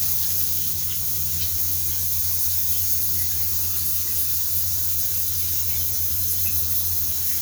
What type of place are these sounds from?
restroom